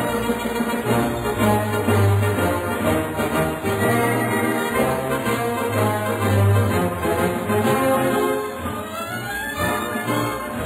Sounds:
Music

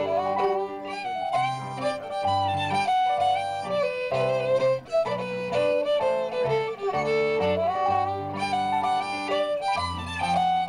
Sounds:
Music, Country, Bluegrass, Classical music, Musical instrument

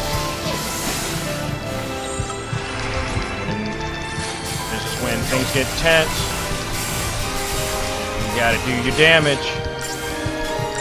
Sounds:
Speech, Music

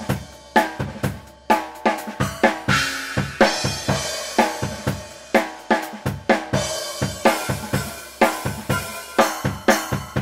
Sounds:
Hi-hat, Cymbal

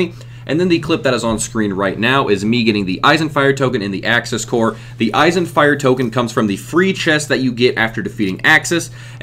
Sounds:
Speech

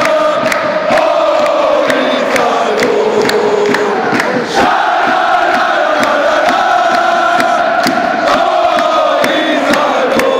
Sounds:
Music

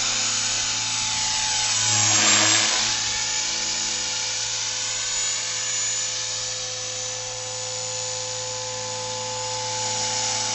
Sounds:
Helicopter

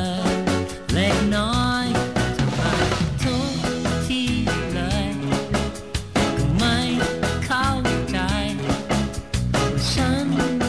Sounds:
Music

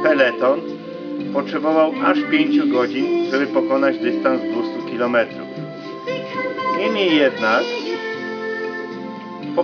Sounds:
Music, Speech

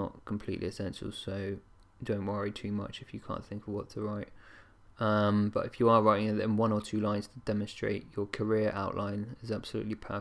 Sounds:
Speech

